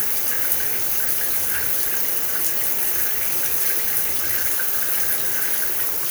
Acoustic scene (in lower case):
restroom